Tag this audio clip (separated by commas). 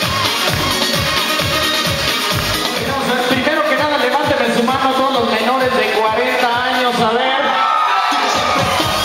Music, Electronica, Speech